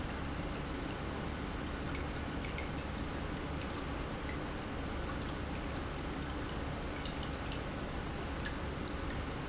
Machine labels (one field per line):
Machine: pump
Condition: normal